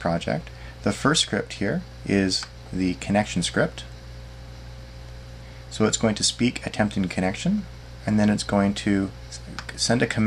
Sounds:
speech, man speaking, monologue

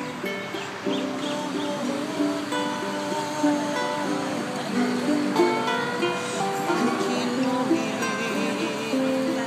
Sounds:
female singing, music

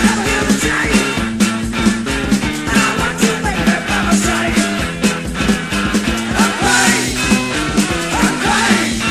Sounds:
music

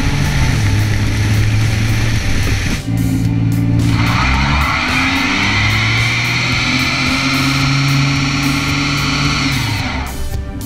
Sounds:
vehicle

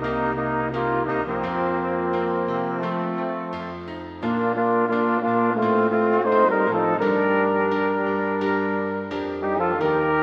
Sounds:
playing trumpet

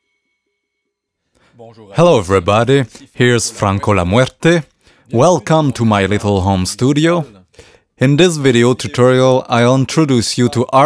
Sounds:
speech

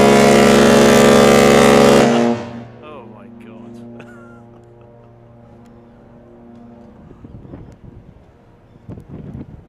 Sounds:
speech

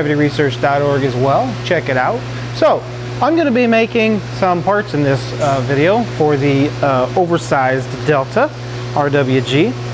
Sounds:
speech

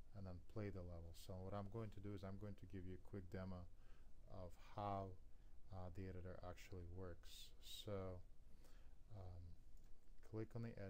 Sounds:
speech

